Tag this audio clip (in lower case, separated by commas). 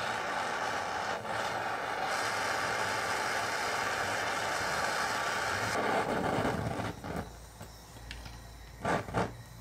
blowtorch igniting